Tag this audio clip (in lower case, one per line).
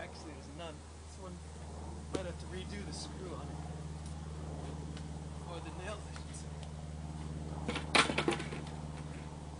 speech